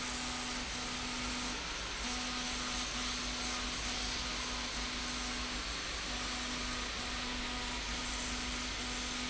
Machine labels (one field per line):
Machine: slide rail